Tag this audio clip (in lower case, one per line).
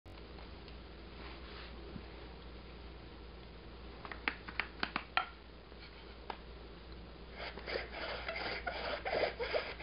wood